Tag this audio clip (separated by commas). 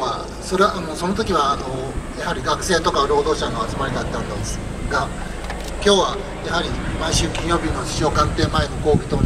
Speech, monologue, Male speech